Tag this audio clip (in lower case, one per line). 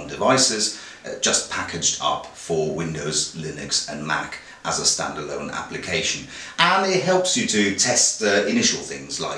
speech